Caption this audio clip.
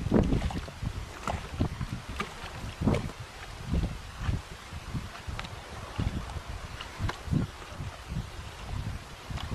Wind on microphone with steady water lapping sounds